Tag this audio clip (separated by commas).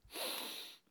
Respiratory sounds